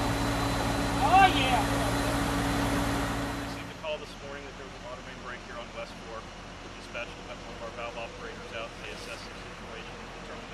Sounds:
Speech

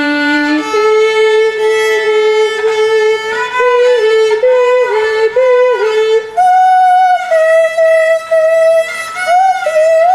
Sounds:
Music, Musical instrument, Violin

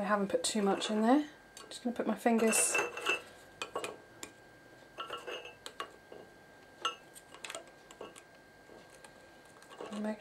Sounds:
inside a small room, Speech

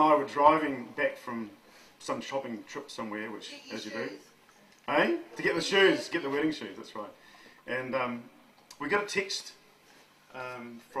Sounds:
Male speech, Narration, Female speech, Speech

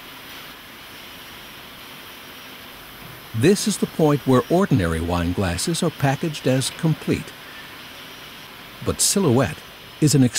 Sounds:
Speech

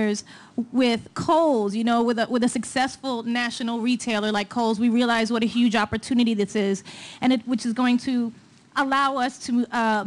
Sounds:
monologue, Speech, Female speech

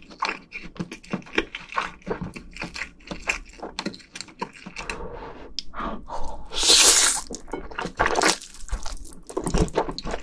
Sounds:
people eating noodle

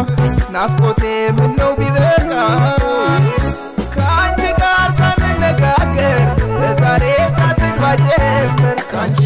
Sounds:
Rhythm and blues, Music, Folk music

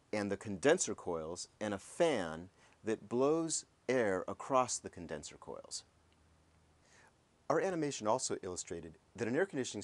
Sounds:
Speech

